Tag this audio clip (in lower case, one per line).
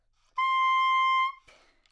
wind instrument
musical instrument
music